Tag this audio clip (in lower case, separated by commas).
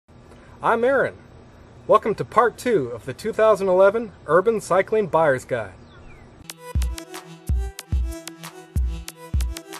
music, speech